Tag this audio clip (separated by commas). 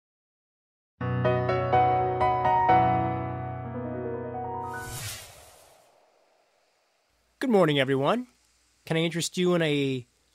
Speech, Music